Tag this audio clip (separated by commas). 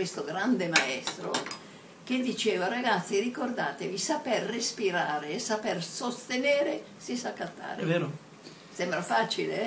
Speech, Conversation